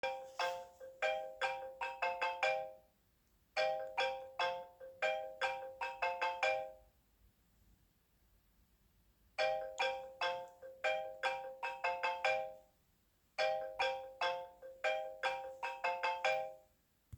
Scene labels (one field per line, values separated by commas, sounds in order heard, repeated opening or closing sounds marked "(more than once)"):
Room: bedroom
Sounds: phone ringing